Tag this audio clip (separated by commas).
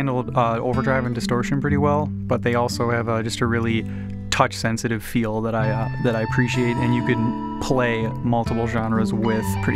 Plucked string instrument, Music, Guitar, Electric guitar, Speech, Musical instrument